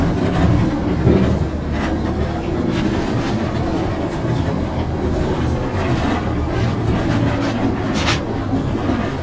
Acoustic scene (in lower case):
bus